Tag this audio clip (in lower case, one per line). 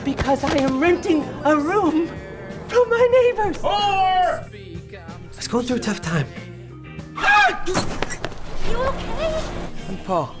speech
music